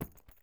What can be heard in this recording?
object falling on carpet